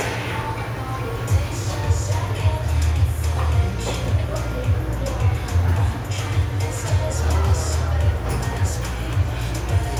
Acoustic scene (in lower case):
cafe